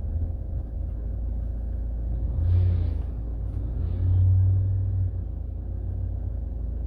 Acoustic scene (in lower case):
car